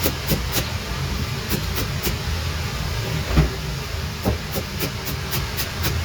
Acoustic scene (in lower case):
kitchen